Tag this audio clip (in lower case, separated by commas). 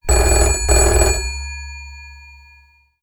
alarm, telephone